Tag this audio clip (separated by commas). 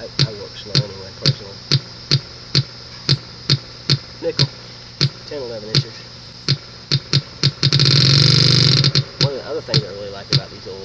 Speech